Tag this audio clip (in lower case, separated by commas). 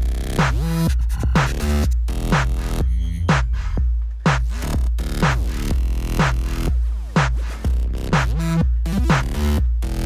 music